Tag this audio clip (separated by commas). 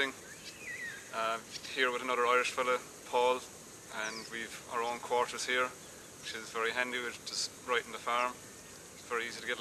Speech